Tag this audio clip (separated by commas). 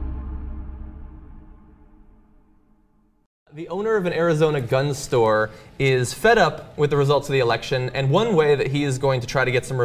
Speech